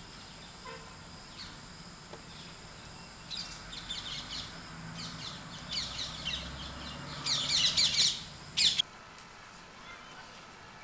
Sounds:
bird, environmental noise

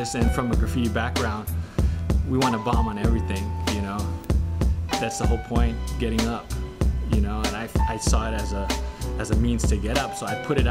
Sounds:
music, speech

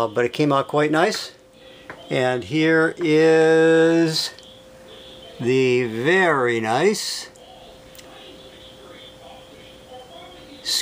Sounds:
inside a small room, speech

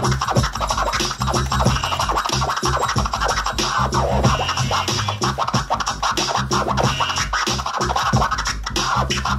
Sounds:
music, scratching (performance technique)

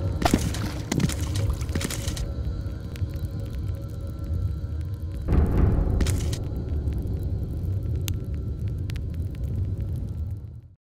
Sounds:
music, gurgling

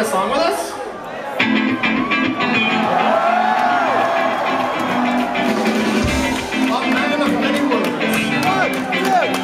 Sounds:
music, speech

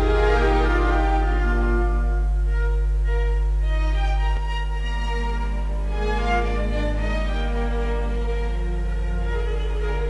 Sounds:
fiddle, musical instrument, music

